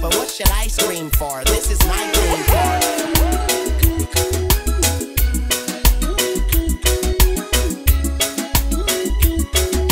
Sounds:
music

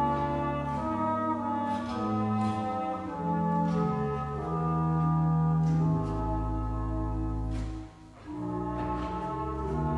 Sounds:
trumpet, brass instrument

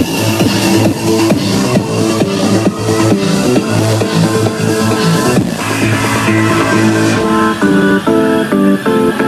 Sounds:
music, sound effect

